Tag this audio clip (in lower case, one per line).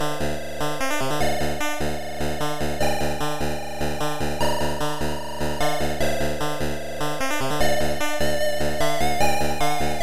music